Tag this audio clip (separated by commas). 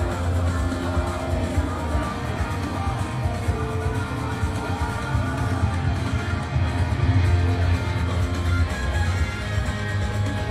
Music, outside, urban or man-made